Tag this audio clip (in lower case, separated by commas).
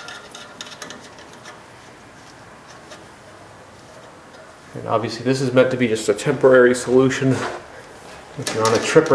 speech